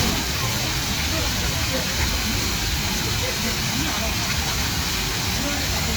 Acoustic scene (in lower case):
park